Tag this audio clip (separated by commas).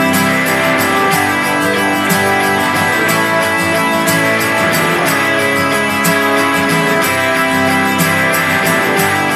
Music